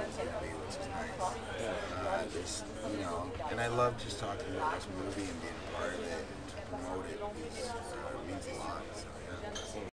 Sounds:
Speech

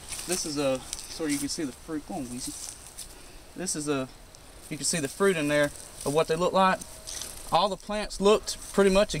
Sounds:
Speech

